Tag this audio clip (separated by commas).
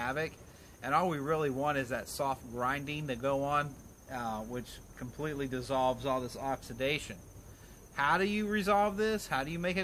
Speech